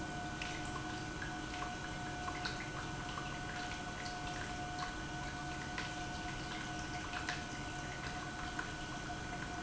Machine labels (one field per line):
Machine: pump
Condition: normal